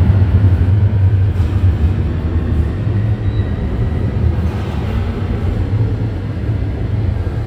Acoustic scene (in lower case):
subway station